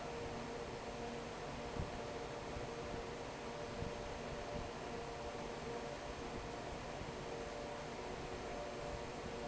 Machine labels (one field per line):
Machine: fan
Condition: normal